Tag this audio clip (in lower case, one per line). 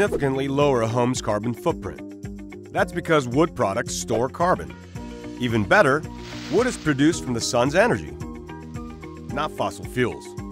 speech
music